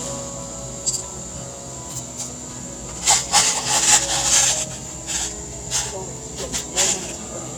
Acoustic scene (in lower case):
cafe